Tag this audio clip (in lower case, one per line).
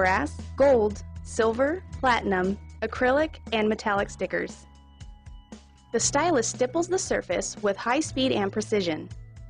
speech
music